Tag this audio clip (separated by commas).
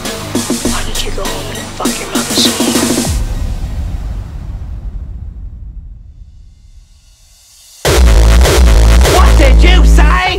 Electronic dance music